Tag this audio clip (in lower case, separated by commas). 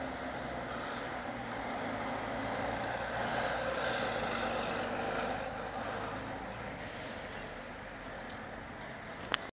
bus, vehicle, driving buses